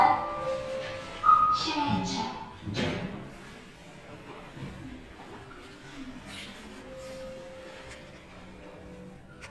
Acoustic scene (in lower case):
elevator